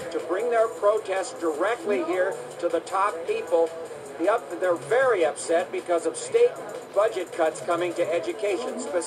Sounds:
speech, music

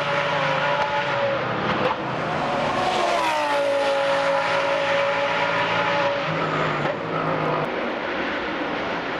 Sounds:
auto racing, vehicle, car

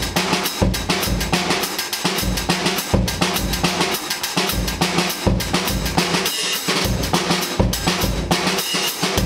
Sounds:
music, drum

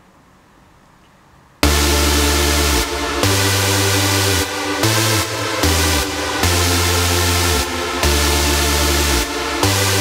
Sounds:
punk rock, music

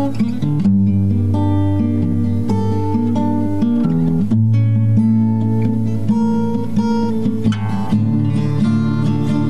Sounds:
music

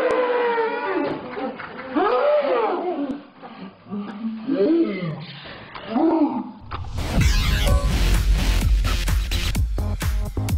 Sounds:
people screaming

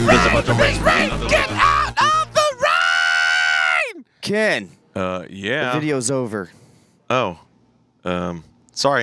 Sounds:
music, speech

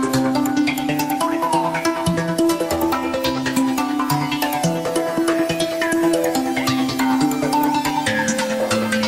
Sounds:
techno, music, electronic music

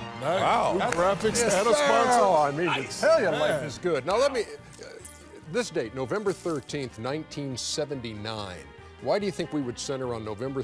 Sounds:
speech, music

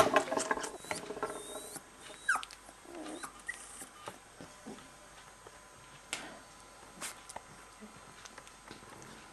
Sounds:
domestic animals, animal, dog

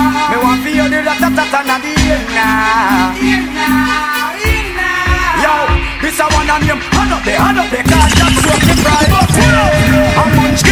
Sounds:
music

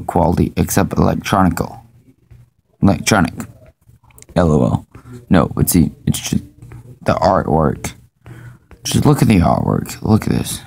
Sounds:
speech

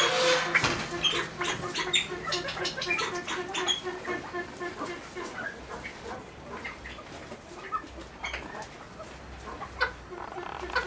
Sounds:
pheasant crowing

